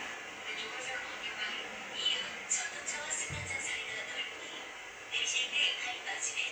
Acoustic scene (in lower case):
subway train